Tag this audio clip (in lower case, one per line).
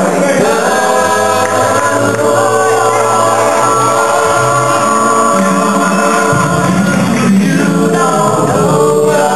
choir
male singing
music